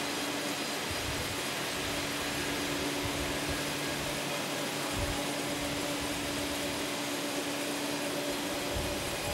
A machine motor humming while sawing wood